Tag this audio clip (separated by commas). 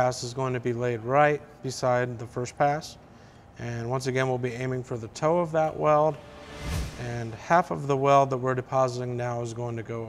arc welding